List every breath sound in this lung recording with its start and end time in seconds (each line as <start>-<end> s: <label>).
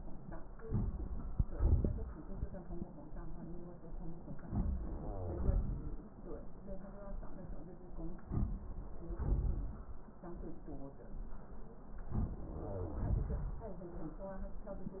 No breath sounds were labelled in this clip.